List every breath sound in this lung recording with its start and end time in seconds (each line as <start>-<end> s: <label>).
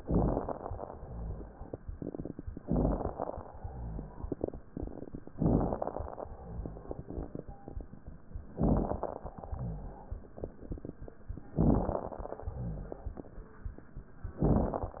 0.00-0.74 s: inhalation
0.00-0.74 s: crackles
0.89-1.60 s: exhalation
0.89-1.60 s: rhonchi
2.64-3.42 s: inhalation
2.64-3.42 s: crackles
3.57-4.28 s: exhalation
3.57-4.28 s: rhonchi
5.41-6.24 s: inhalation
5.41-6.24 s: crackles
6.28-6.99 s: exhalation
6.28-6.99 s: rhonchi
8.59-9.37 s: inhalation
8.59-9.37 s: crackles
9.49-10.20 s: exhalation
9.49-10.20 s: rhonchi
11.59-12.37 s: inhalation
11.59-12.37 s: crackles
12.46-13.18 s: exhalation
12.46-13.18 s: rhonchi
14.46-15.00 s: inhalation
14.46-15.00 s: crackles